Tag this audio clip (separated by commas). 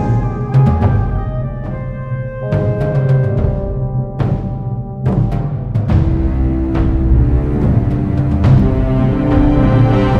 Music